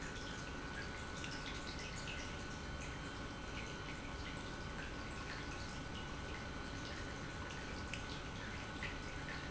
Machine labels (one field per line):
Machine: pump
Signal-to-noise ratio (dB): 6 dB